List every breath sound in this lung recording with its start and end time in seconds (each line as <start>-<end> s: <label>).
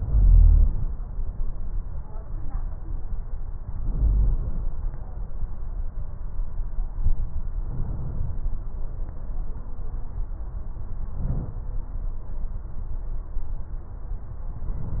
0.00-0.89 s: inhalation
3.83-4.71 s: inhalation
7.63-8.51 s: inhalation
11.17-11.62 s: inhalation
14.50-15.00 s: inhalation